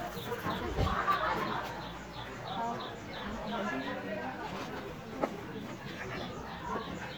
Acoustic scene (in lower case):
park